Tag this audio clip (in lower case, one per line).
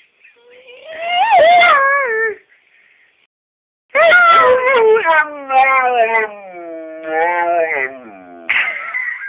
yip